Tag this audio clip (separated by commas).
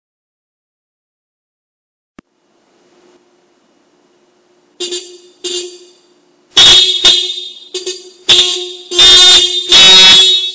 honking